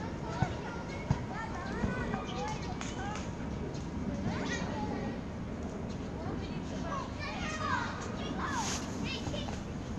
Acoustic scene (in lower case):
park